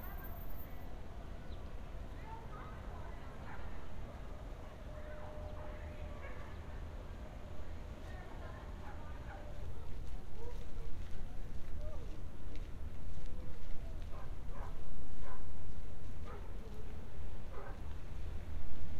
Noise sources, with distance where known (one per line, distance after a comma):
person or small group talking
dog barking or whining